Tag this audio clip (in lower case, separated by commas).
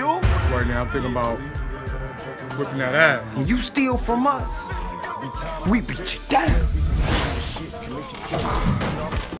music, speech